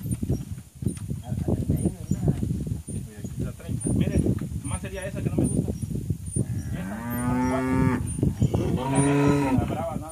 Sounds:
livestock, cattle mooing, Moo, Cattle

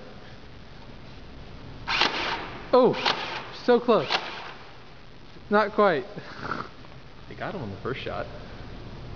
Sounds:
Speech, inside a large room or hall

